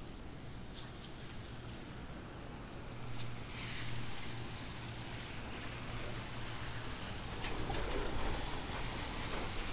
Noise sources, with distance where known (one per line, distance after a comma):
engine of unclear size